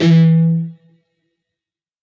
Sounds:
Music, Guitar, Plucked string instrument, Musical instrument

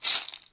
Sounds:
Percussion, Musical instrument, Music, Rattle (instrument)

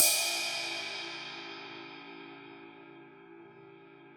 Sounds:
Music, Percussion, Cymbal, Crash cymbal, Musical instrument

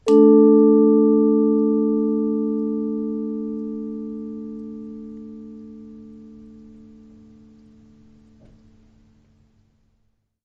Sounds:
Music, Percussion, Mallet percussion, Musical instrument

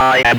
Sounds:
Human voice, Speech

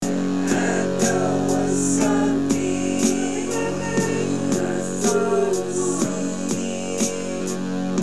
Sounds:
Music, Guitar, Plucked string instrument, Human voice, Musical instrument

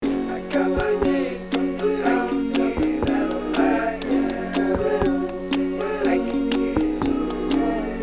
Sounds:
Acoustic guitar, Guitar, Musical instrument, Music, Human voice, Plucked string instrument

